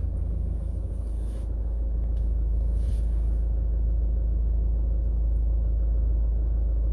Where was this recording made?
in a car